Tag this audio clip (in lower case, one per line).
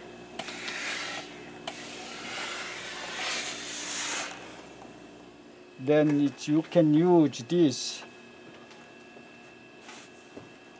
speech